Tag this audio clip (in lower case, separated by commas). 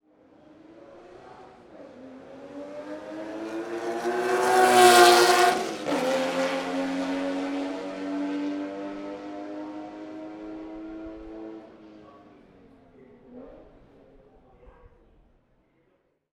vroom, engine